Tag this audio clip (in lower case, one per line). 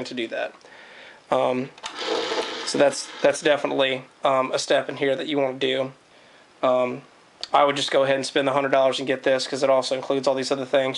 speech
inside a small room